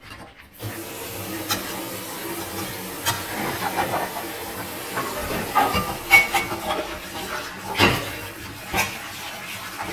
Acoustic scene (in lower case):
kitchen